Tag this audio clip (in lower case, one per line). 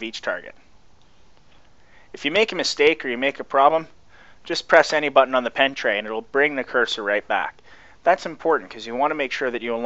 speech